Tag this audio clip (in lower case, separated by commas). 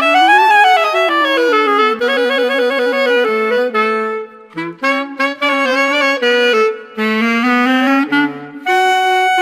music, musical instrument, clarinet